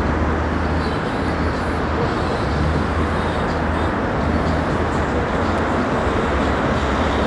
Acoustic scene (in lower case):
street